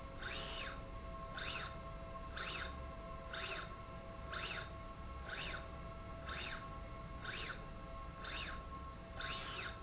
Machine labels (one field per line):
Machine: slide rail